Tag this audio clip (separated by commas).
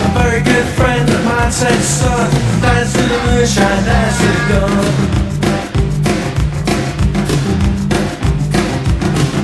Music, Rock and roll